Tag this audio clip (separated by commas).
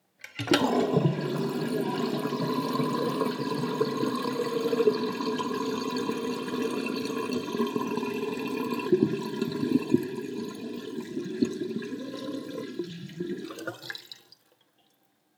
Liquid